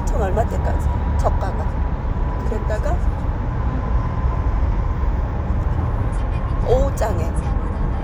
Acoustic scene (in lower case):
car